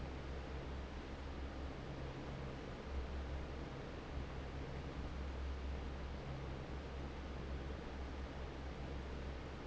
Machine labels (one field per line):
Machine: fan